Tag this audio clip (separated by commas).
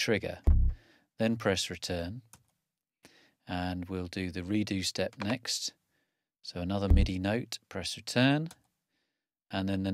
Speech